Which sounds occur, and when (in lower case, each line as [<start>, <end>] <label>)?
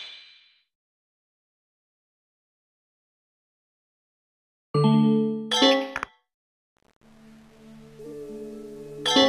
[0.00, 0.65] sound effect
[4.72, 6.19] sound effect
[6.98, 9.25] background noise
[7.96, 9.25] music
[9.03, 9.25] sound effect